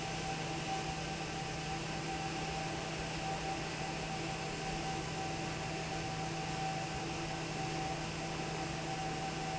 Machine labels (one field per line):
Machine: fan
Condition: normal